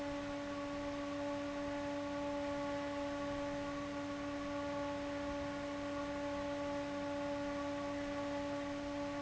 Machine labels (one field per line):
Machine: fan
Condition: abnormal